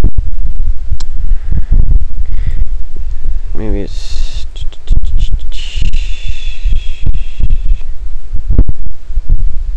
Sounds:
inside a small room, speech

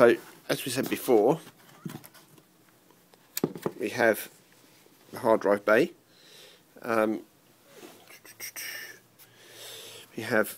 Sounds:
speech, inside a small room

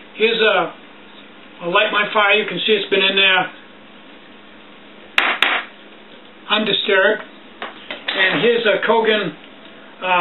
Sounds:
speech

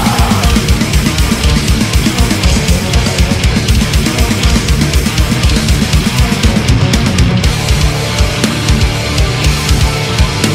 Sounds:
plucked string instrument, harpsichord, guitar, music, musical instrument

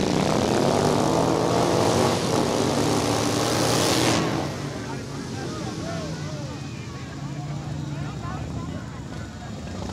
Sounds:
vehicle, motorcycle

